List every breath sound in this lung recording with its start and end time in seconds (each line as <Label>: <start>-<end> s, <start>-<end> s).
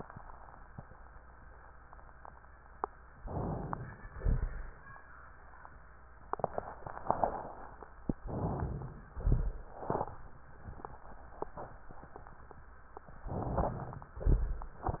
Inhalation: 3.23-4.08 s, 8.26-9.16 s, 13.28-14.16 s
Exhalation: 4.08-4.72 s, 9.16-9.77 s, 14.16-14.86 s